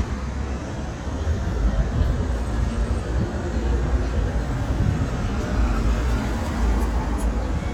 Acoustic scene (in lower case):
street